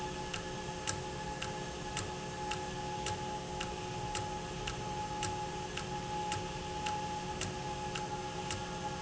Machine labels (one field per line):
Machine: valve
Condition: normal